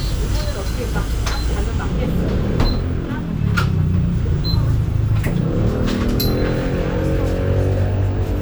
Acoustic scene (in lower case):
bus